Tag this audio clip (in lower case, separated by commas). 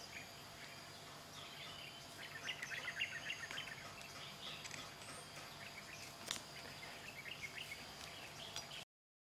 bird, animal